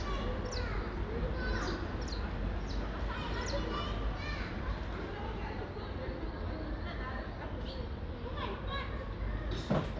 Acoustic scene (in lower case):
residential area